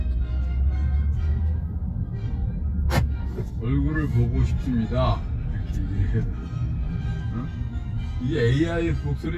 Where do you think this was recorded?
in a car